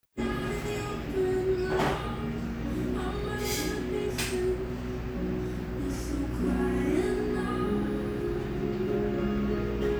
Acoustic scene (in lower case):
cafe